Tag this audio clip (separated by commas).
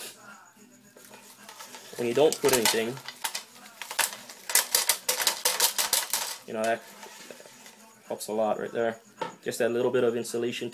Speech